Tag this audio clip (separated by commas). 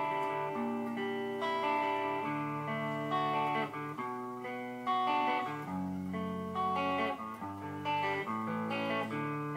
Music, Musical instrument, Electric guitar, Guitar, Plucked string instrument